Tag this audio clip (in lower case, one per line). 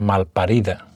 human voice
male speech
speech